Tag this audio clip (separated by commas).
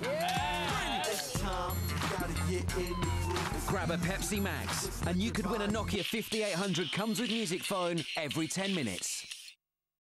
Music, Speech